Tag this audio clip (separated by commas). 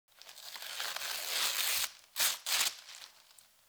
Tearing